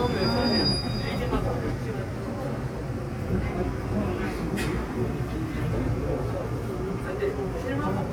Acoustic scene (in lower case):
subway train